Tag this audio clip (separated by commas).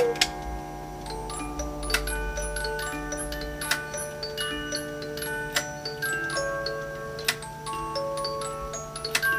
Music, Clock